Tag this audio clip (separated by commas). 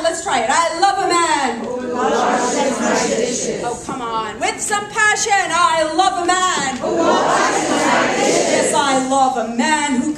Speech